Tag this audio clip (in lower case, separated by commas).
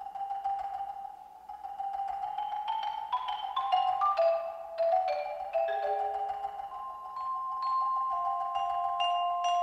music, tubular bells